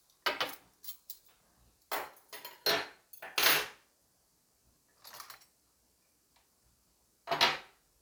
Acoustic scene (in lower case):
kitchen